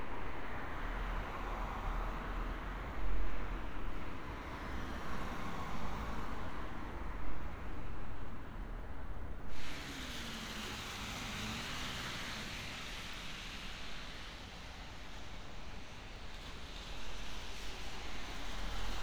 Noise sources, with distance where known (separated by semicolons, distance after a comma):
engine of unclear size